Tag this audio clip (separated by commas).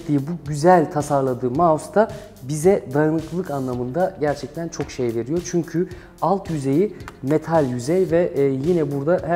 Music, Speech